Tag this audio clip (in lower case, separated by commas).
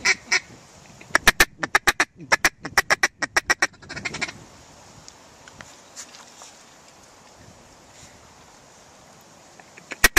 quack, duck quacking, animal